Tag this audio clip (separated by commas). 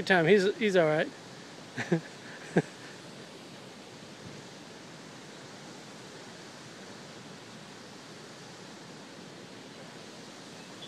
Speech